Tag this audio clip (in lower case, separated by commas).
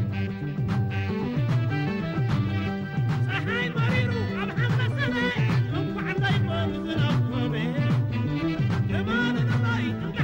music